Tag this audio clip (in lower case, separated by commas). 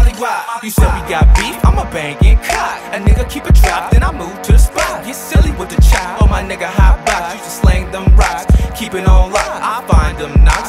music, punk rock